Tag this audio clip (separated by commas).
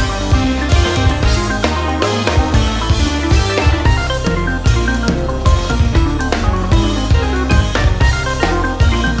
Music, Video game music